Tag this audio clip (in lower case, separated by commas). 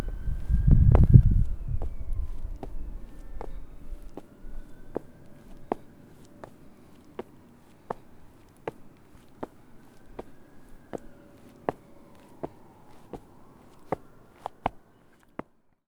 walk